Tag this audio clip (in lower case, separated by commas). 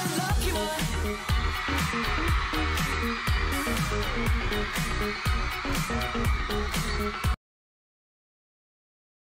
exciting music, music